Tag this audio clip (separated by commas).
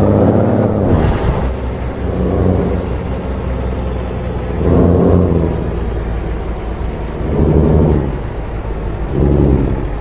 Truck, Vehicle